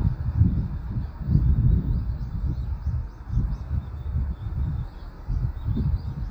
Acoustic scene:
park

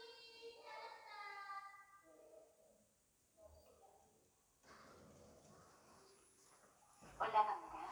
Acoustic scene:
elevator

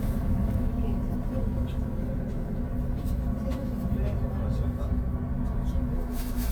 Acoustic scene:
bus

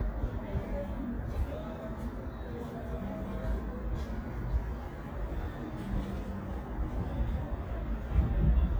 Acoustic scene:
residential area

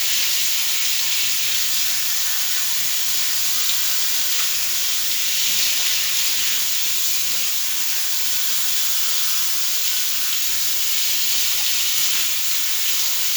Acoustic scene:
restroom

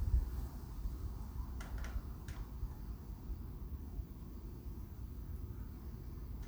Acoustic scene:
residential area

